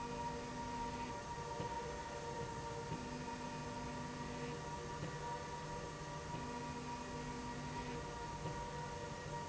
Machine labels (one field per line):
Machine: slide rail